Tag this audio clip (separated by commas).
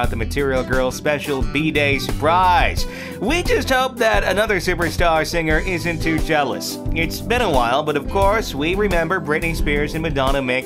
Music, Speech